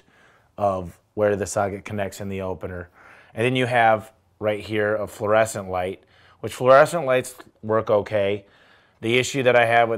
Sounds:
Speech

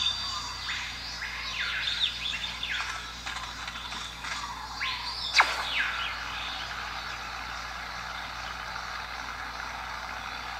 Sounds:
inside a small room, tweet

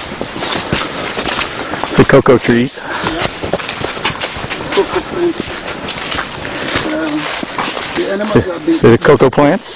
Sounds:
Speech

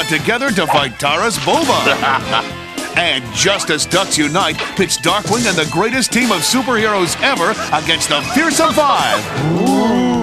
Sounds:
Speech, Music

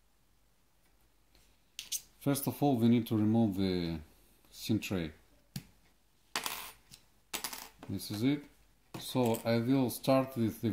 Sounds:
Speech

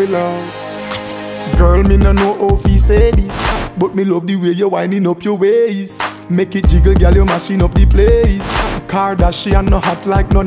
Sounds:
Music

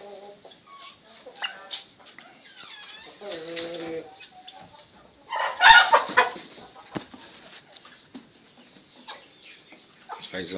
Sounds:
pheasant crowing

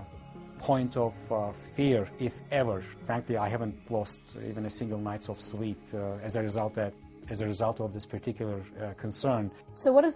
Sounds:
Speech, inside a small room, Music

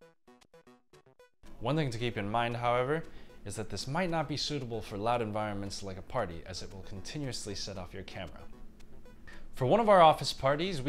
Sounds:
Music, Speech

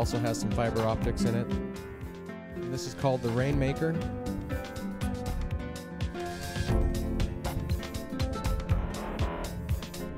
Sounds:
Speech, Music

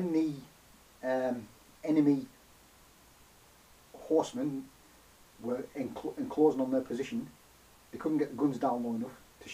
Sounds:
Speech, inside a small room

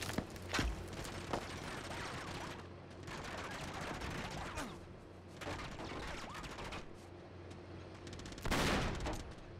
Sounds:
Gunshot

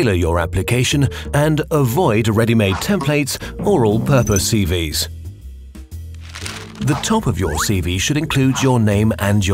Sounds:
Music, Speech

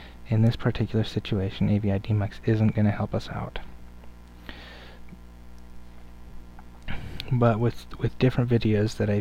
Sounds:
Speech

